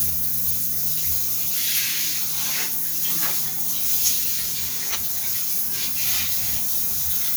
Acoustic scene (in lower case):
restroom